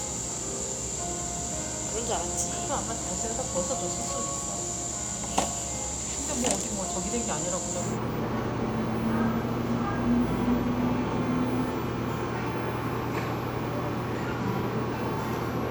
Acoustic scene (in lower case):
cafe